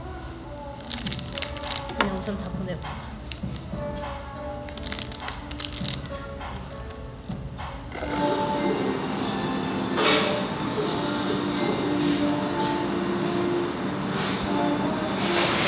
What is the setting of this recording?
restaurant